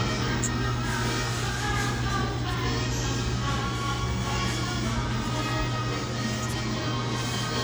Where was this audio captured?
in a cafe